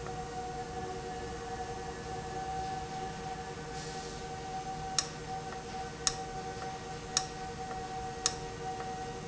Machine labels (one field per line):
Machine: valve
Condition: abnormal